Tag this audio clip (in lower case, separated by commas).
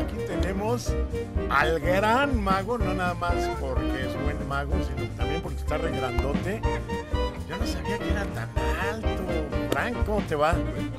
music, speech